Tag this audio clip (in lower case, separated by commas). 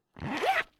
home sounds, zipper (clothing)